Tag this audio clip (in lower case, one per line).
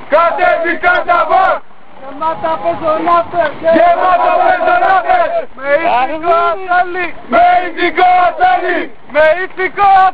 speech